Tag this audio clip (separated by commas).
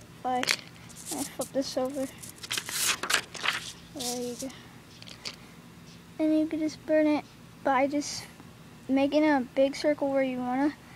Speech